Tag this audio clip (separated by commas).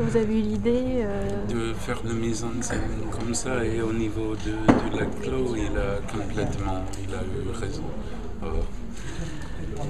Speech